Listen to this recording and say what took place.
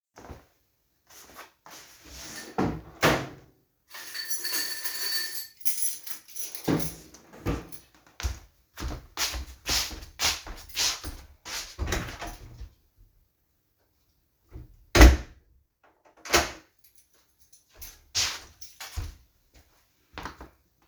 I opened the drawer, searched for my keys, grabbed them, closed the drawer, made a few steps towards the door, opened it, left, closed it and locked it.